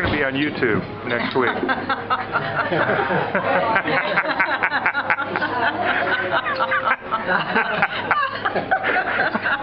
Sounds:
speech, music

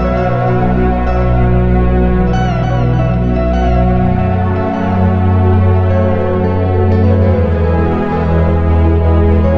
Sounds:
music, soundtrack music, theme music

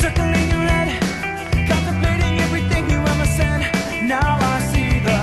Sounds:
music

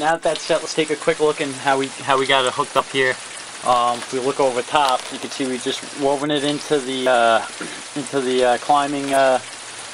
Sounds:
speech, liquid

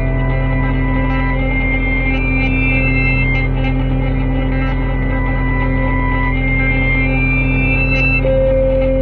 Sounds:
music

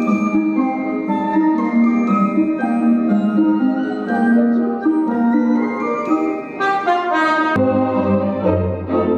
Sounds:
glockenspiel, mallet percussion, marimba

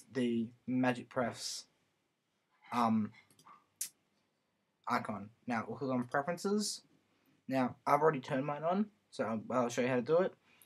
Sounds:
speech

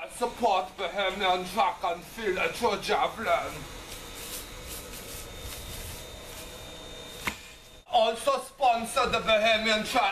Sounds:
speech

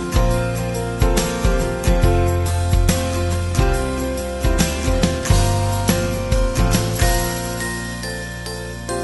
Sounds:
music

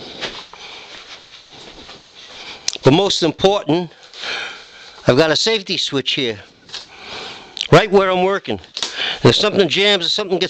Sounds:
speech

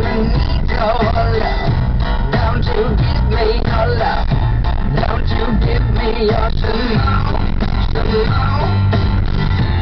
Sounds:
vehicle, car, music

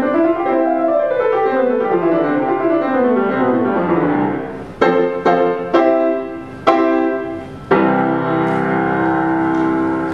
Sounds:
classical music, piano, musical instrument, keyboard (musical)

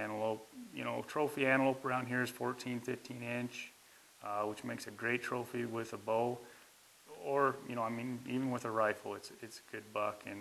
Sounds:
speech

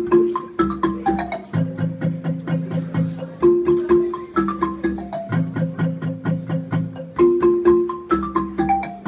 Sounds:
music, speech

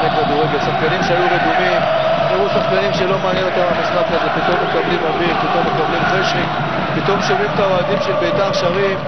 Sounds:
music, speech

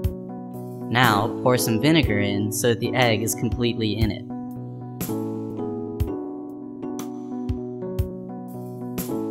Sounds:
speech, music

